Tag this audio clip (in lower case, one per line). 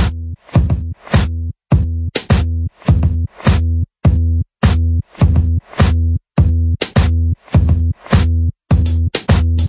music